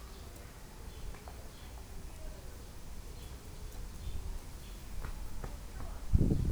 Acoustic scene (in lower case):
park